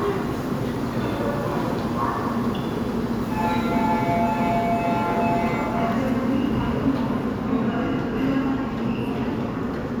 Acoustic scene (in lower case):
subway station